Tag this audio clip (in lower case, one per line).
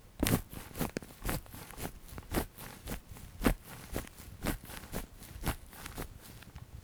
walk